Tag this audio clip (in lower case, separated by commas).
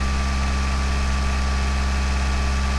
engine